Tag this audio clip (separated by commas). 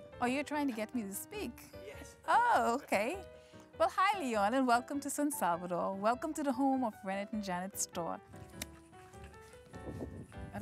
Speech, Music